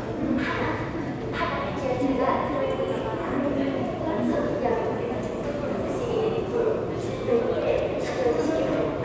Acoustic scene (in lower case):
subway station